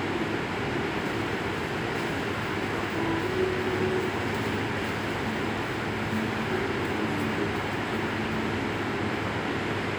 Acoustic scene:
subway station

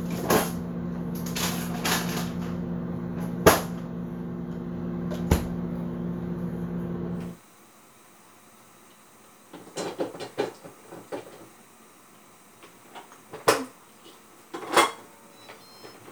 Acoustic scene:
kitchen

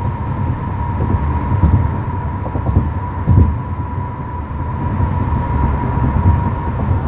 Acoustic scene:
car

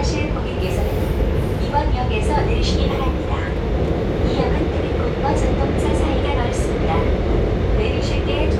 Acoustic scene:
subway train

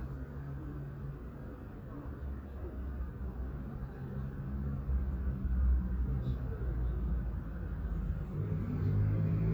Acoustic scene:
residential area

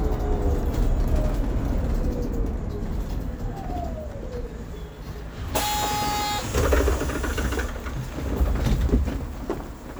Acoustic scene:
bus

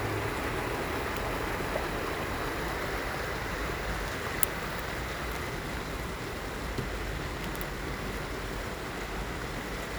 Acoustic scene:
park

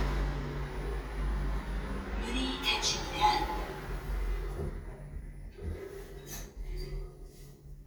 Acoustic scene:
elevator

